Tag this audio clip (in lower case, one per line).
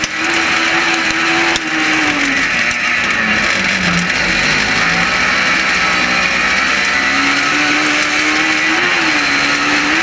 driving snowmobile